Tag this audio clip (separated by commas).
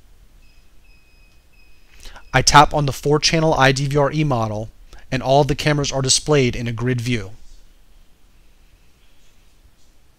Speech